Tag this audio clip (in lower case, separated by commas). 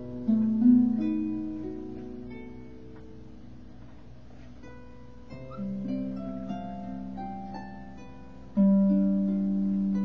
sad music, tender music, music